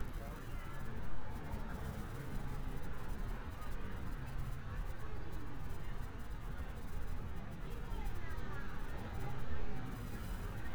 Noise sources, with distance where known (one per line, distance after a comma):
person or small group talking, far